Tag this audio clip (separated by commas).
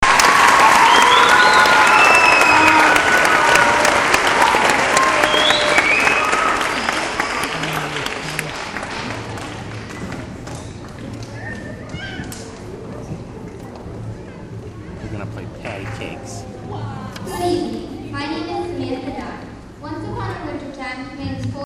Human group actions, Applause